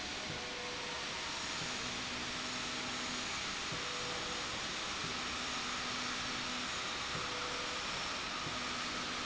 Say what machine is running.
slide rail